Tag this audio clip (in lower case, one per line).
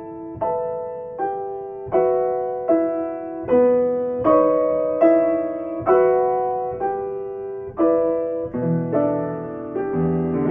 musical instrument
electric piano
keyboard (musical)
piano
music